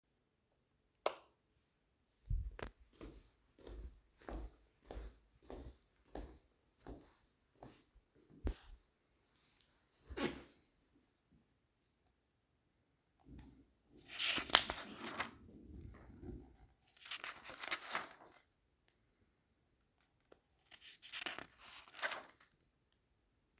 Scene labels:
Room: living room; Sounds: light switch, footsteps

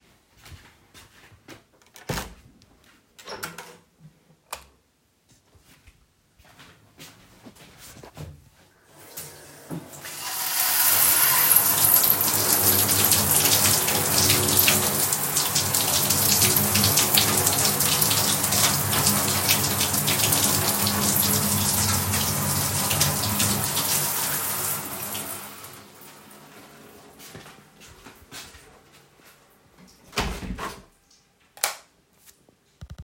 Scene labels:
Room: bathroom; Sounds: footsteps, door (more than once), light switch, running water

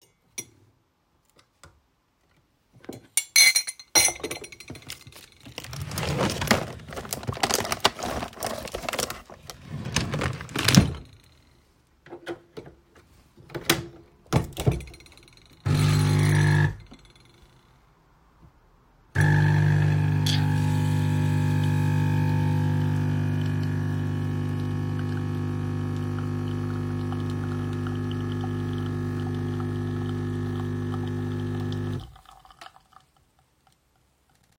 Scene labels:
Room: kitchen; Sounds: cutlery and dishes, wardrobe or drawer (more than once), coffee machine

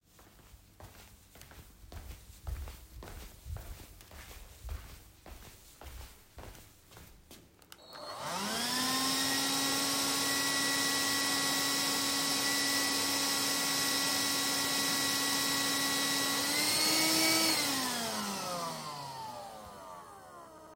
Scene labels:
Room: living room; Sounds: footsteps, vacuum cleaner

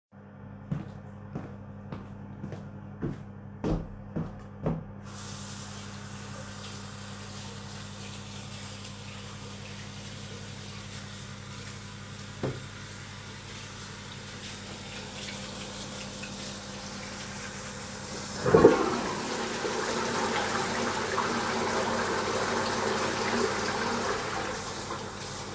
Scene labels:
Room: lavatory; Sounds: footsteps, running water, toilet flushing

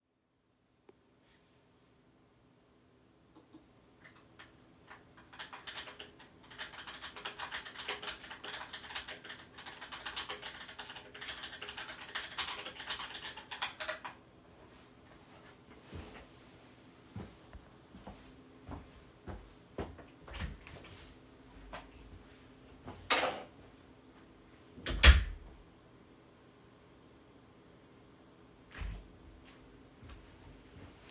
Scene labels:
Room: office; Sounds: keyboard typing, footsteps, door (more than once)

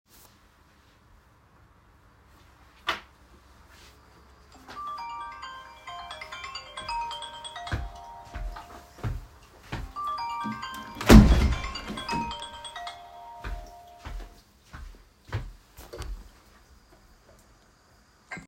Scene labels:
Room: bedroom; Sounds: phone ringing, footsteps, window

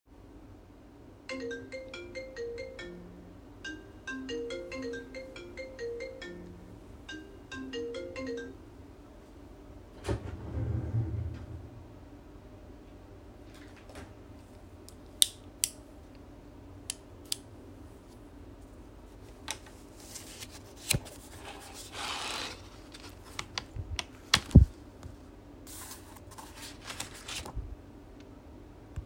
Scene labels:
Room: living room; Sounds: phone ringing, wardrobe or drawer

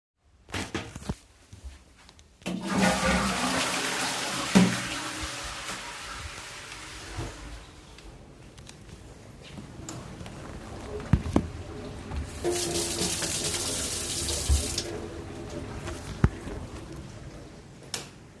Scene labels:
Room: bathroom; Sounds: toilet flushing, running water, light switch

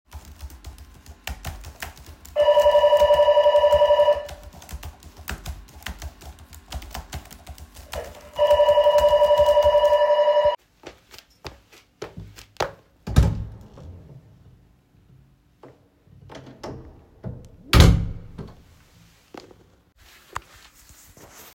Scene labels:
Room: office; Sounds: keyboard typing, bell ringing, footsteps, door (more than once)

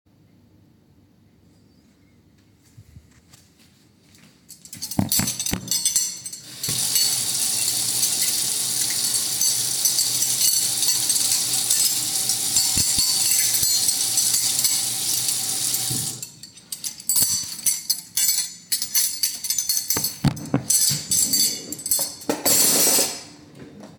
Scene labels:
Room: kitchen; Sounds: footsteps, cutlery and dishes, running water, wardrobe or drawer

